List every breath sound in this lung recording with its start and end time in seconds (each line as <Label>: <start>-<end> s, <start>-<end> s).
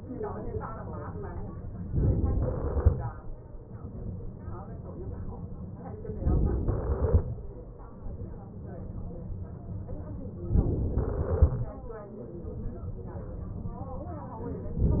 Inhalation: 2.03-2.94 s, 6.22-7.14 s, 10.61-11.53 s